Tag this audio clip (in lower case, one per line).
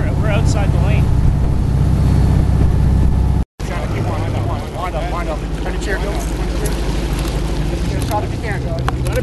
speech